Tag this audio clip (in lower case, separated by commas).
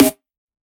music, drum, snare drum, musical instrument, percussion